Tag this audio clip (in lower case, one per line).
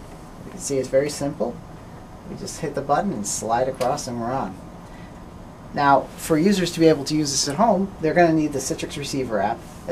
speech